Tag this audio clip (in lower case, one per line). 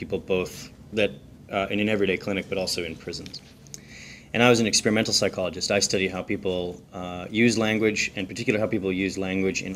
speech